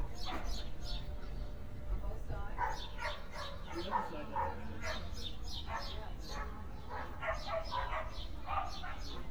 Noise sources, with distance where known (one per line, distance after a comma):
person or small group talking, near
dog barking or whining, near